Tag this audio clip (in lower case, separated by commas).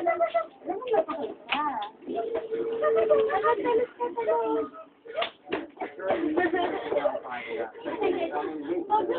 speech